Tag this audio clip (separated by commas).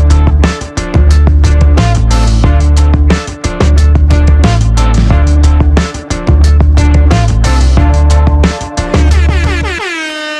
Music